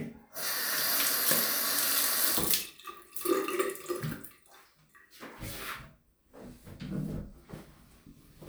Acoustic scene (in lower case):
restroom